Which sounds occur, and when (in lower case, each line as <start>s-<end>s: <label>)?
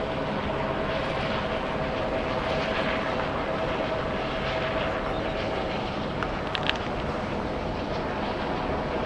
0.0s-9.0s: helicopter
5.0s-5.2s: brief tone
6.2s-6.3s: tick
6.5s-7.0s: generic impact sounds